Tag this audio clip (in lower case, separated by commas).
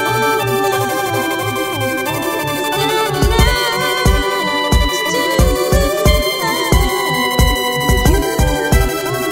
music, trance music